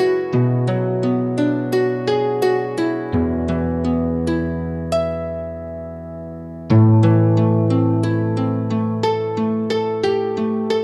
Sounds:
Harp, Music, Musical instrument

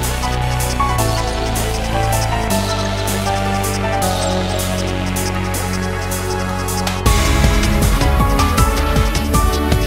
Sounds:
Music, Funk

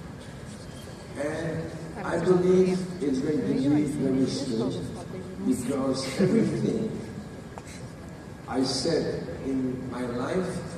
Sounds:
Laughter, Speech

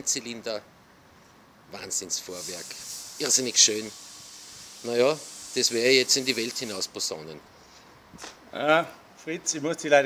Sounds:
Speech

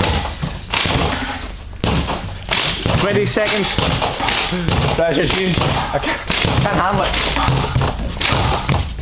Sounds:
Basketball bounce, Speech

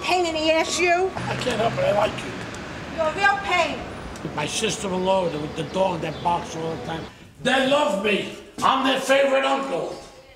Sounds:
Speech

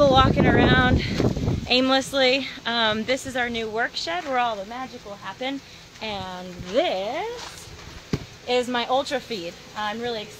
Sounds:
Speech

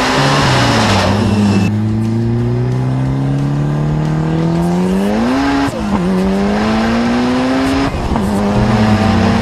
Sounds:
Car, Music, Vehicle, auto racing

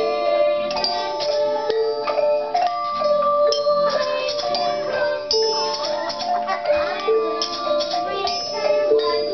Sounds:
Music

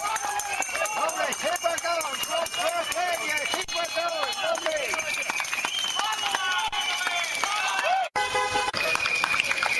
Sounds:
Speech, outside, urban or man-made, Music

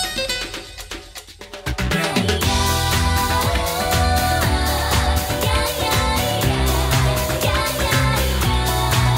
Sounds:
Music

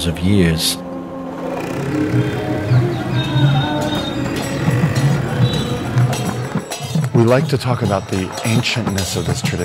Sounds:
Music, Speech

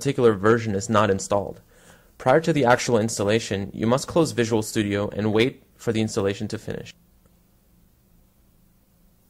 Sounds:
Speech

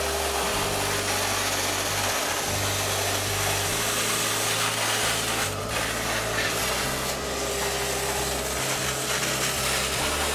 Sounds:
Music, Tools

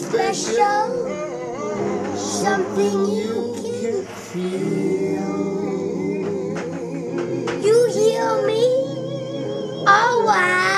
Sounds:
Male singing, Blues, Child singing, Music, Speech

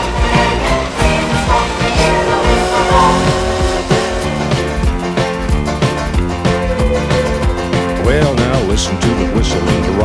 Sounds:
Music

